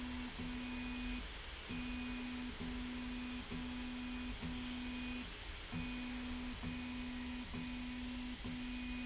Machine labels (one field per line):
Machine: slide rail